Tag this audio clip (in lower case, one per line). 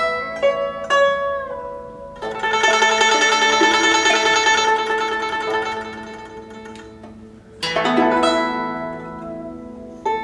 music